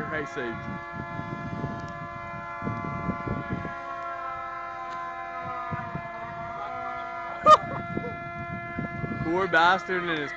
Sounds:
Speech, Fire engine

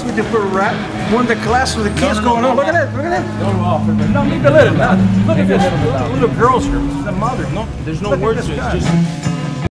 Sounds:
Music, Speech

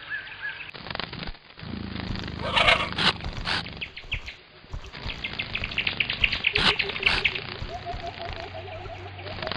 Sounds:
dinosaurs bellowing

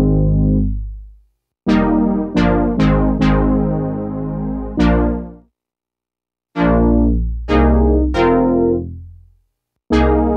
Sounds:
Keyboard (musical), Music, Musical instrument, Synthesizer, Piano

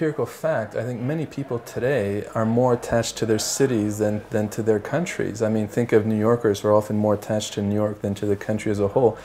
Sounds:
Speech

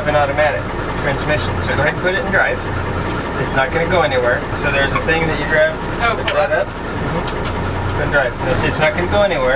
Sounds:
Speech, Vehicle

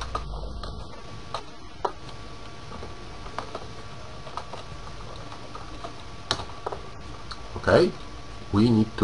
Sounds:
Speech, inside a small room

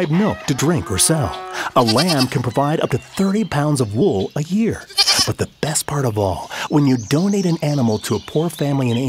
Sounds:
Speech

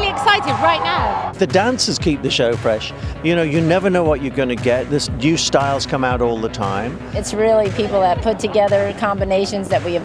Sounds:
Music, Speech

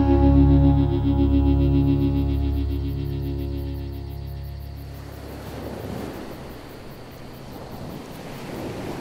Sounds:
Music

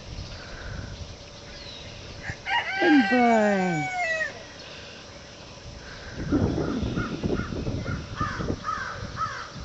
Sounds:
Crow, Fowl, Chicken, Speech, Animal

